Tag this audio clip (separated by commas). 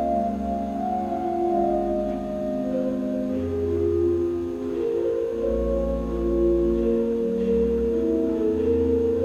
Hammond organ, Organ